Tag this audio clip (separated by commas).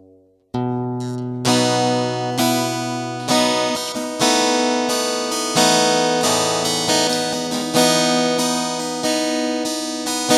Plucked string instrument, Musical instrument, inside a small room, Music, Acoustic guitar